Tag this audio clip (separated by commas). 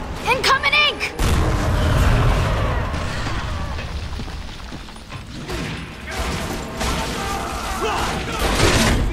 Speech